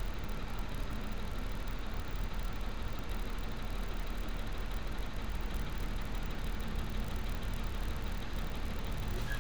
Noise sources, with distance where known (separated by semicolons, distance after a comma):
unidentified impact machinery, far